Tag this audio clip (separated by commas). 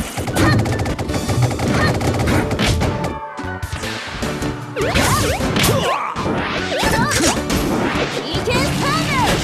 crash, Music, Speech